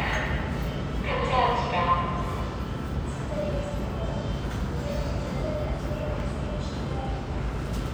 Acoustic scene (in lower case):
subway station